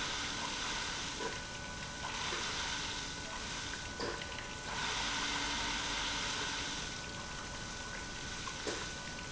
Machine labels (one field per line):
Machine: pump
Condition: abnormal